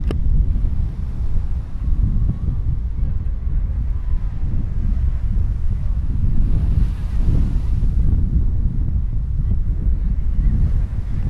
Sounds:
Wind

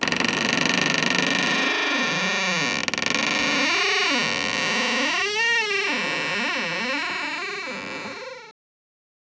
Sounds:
Door, Domestic sounds

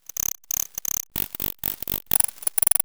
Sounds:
Insect, Wild animals, Animal

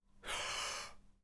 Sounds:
Respiratory sounds, Breathing

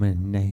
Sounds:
Human voice, Speech

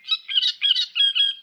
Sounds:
Bird, Wild animals, Animal

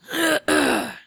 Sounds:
Respiratory sounds, Human voice, Cough

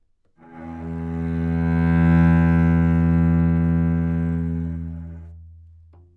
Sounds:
Music, Musical instrument, Bowed string instrument

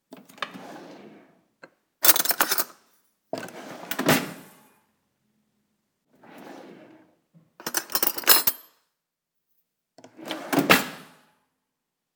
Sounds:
Drawer open or close, home sounds

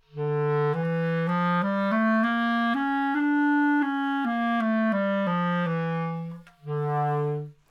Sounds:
Musical instrument, Wind instrument, Music

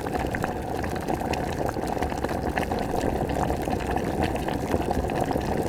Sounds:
Liquid, Boiling

